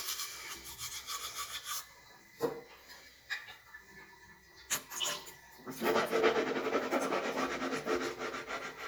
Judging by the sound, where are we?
in a restroom